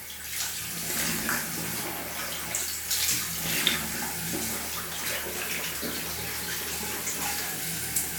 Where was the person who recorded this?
in a restroom